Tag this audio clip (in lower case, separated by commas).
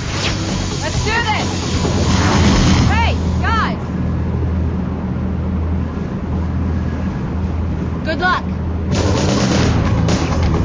speech, music